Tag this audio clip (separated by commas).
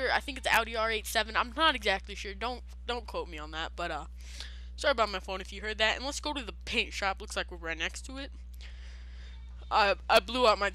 Speech